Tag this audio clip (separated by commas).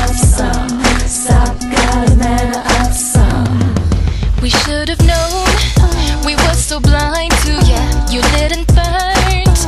Music